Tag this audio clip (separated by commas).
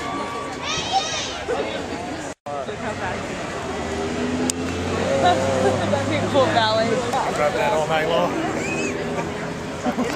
outside, urban or man-made, Speech